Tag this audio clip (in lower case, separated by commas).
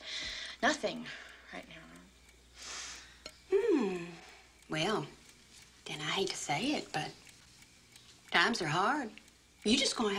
inside a small room, speech